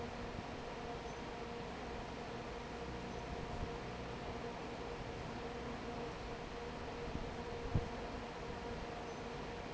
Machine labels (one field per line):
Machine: fan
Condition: normal